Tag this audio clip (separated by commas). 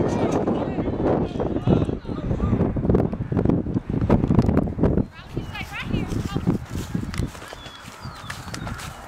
Speech